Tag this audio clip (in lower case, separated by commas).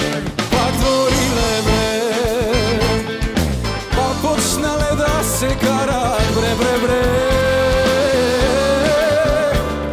rock and roll, music, singing, orchestra